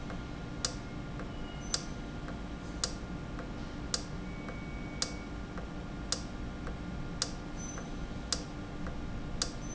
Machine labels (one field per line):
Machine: valve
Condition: normal